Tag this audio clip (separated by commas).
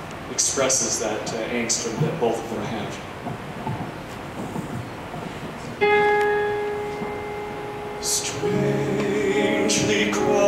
Male singing, Speech, Music